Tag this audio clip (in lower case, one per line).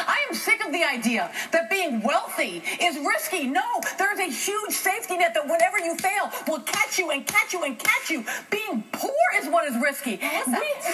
speech